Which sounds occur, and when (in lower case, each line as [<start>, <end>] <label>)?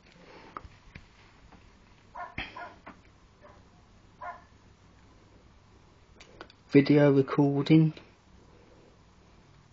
[0.00, 9.72] background noise
[0.02, 0.10] generic impact sounds
[0.13, 0.49] surface contact
[0.49, 0.62] generic impact sounds
[0.87, 1.00] generic impact sounds
[1.09, 1.32] surface contact
[1.46, 1.53] generic impact sounds
[2.11, 2.30] bark
[2.31, 2.43] generic impact sounds
[2.51, 2.70] bark
[2.80, 2.91] generic impact sounds
[3.34, 3.53] bark
[3.68, 3.86] human voice
[4.17, 4.42] bark
[6.14, 6.23] generic impact sounds
[6.36, 6.50] generic impact sounds
[6.68, 8.00] male speech
[7.90, 8.02] generic impact sounds
[8.38, 8.94] breathing
[9.20, 9.65] breathing